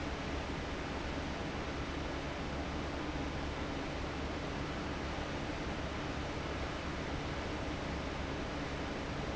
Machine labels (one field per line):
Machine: fan